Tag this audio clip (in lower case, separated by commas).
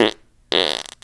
fart